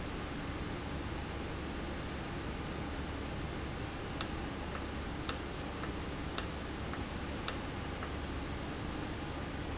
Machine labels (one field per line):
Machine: valve